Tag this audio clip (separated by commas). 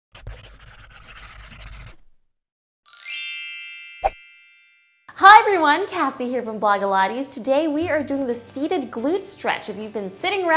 inside a small room, Music, Speech